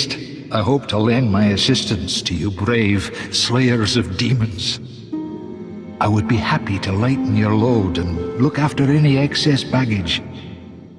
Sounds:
music
speech

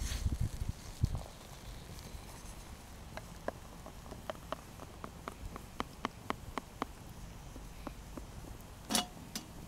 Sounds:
fire

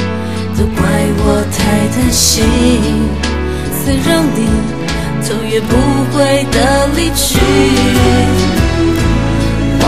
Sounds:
music

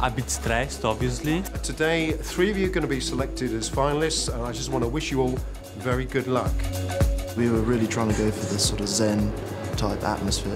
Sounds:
speech
music

